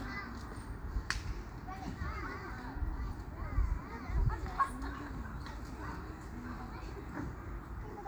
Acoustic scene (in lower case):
park